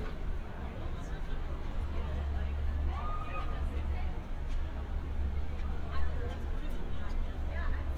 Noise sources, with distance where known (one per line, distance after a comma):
person or small group talking
person or small group shouting, far